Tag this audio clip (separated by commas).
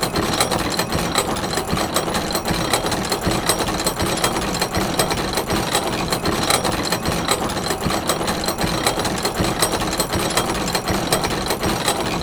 Mechanisms